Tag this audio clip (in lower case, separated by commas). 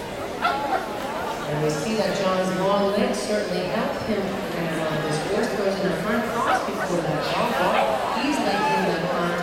speech, bow-wow